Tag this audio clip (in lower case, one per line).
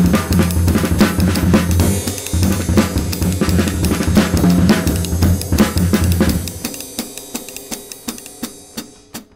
playing bass drum